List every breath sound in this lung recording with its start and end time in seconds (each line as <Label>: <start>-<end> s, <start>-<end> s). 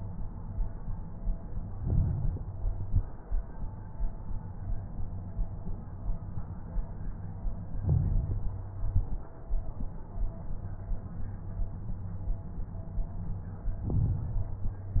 Inhalation: 1.73-2.56 s, 7.85-8.68 s, 13.83-14.67 s
Exhalation: 2.64-3.17 s, 8.80-9.33 s
Crackles: 1.73-2.56 s, 2.64-3.17 s, 7.85-8.68 s, 8.80-9.33 s, 13.83-14.67 s